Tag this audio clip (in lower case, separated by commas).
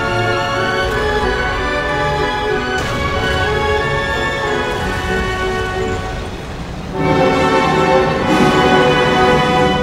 music